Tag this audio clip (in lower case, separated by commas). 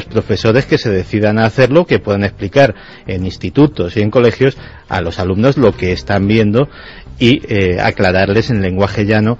speech